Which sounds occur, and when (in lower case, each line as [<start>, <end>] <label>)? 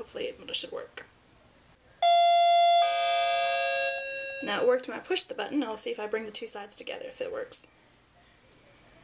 [0.00, 9.03] mechanisms
[8.07, 8.98] female speech